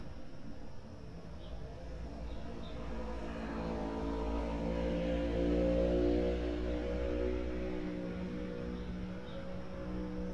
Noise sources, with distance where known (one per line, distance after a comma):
medium-sounding engine, near